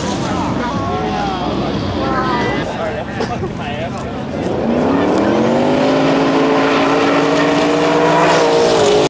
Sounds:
Speech

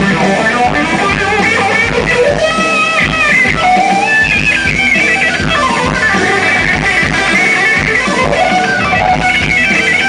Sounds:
Music

